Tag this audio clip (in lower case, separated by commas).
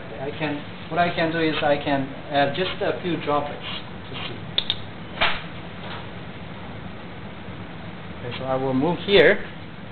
inside a small room, speech